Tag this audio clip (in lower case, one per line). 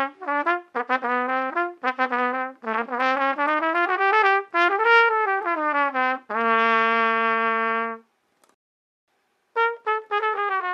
playing cornet